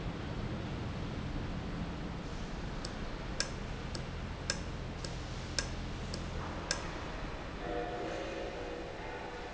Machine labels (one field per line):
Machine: valve